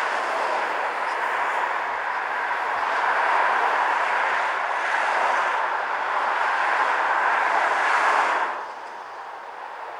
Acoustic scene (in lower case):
street